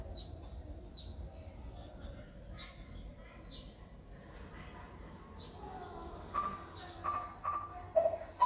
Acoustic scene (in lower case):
residential area